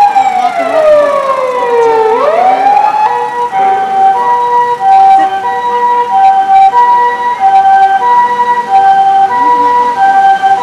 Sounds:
siren, vehicle, emergency vehicle, motor vehicle (road)

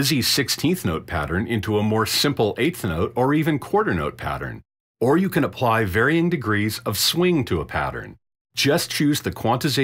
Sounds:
speech synthesizer

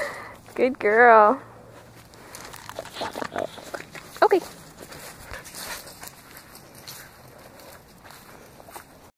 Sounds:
domestic animals, outside, rural or natural, animal, dog, speech

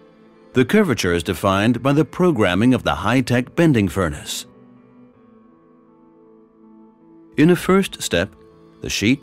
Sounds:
speech

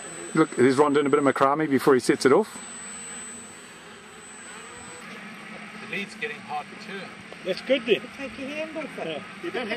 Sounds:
speech, outside, rural or natural

